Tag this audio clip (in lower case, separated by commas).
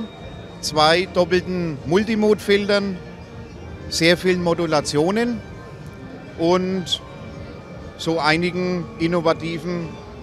music, speech